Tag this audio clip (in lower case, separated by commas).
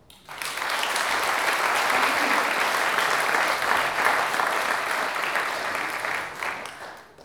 applause, human group actions